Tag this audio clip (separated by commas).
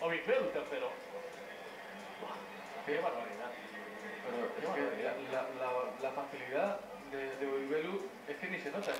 Speech